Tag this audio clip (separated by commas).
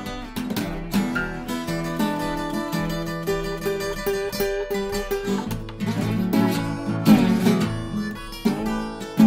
Acoustic guitar, Music, Musical instrument, Guitar, Plucked string instrument, Strum